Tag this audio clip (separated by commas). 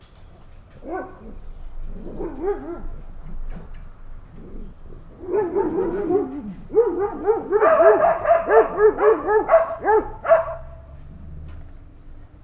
Animal, Domestic animals, Dog